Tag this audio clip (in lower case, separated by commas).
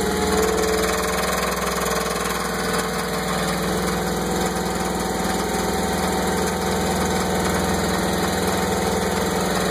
medium engine (mid frequency), vehicle, engine